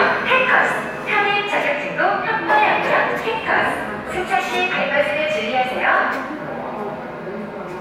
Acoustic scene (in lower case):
subway station